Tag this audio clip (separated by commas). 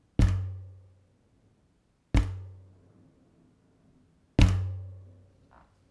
thud